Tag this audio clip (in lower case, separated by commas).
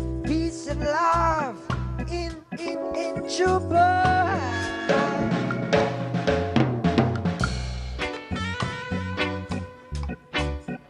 music, singing